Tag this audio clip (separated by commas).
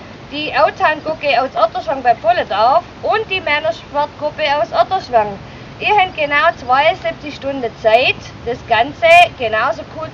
Speech